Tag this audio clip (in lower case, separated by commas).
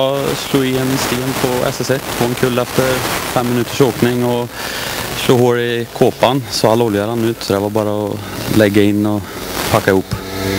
speech